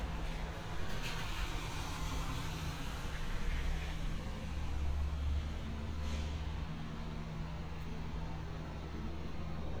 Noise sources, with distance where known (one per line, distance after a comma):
medium-sounding engine